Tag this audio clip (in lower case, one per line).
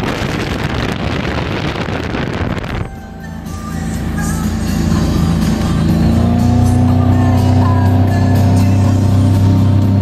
music
motorboat
vehicle